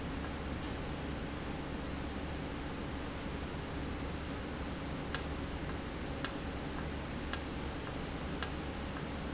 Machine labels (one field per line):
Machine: valve